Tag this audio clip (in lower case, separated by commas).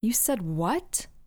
speech, woman speaking, human voice